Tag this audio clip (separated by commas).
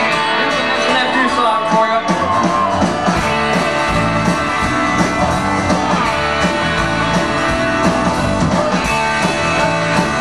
Speech, Music